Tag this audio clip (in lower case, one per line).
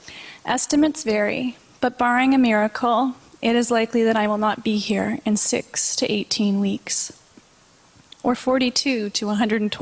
female speech
speech